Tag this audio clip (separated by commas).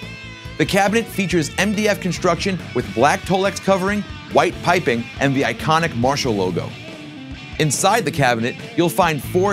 Speech, Music